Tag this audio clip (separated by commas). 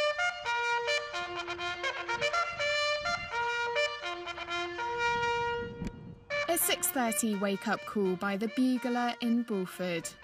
playing bugle